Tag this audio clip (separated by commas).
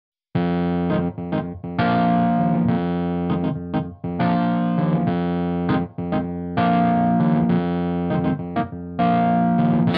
Music, Effects unit, Distortion